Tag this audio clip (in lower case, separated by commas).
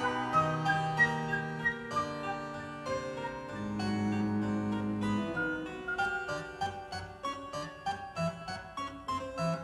piano, harpsichord, music, musical instrument